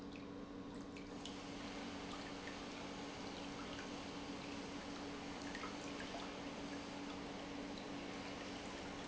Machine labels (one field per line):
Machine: pump